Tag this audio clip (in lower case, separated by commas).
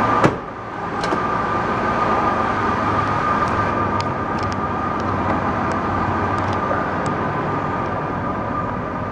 door